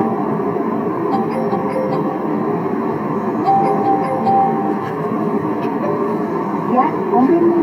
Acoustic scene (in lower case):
car